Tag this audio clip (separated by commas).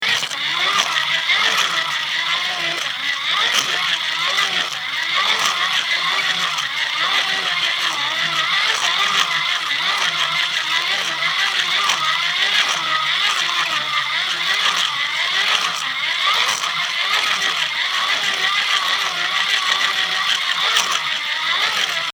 Mechanisms